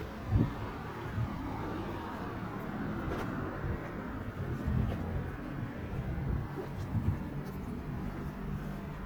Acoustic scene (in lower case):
residential area